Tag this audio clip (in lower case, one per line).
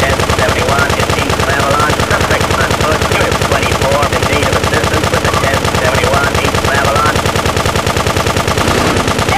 gunshot
machine gun